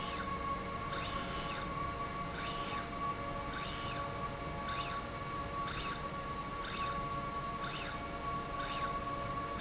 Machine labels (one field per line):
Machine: slide rail